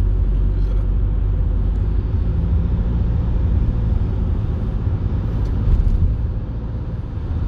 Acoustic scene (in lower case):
car